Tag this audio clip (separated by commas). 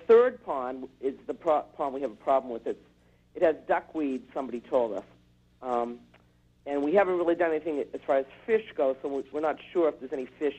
Speech